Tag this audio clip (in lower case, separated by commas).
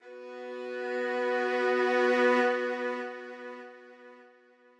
musical instrument, bowed string instrument, music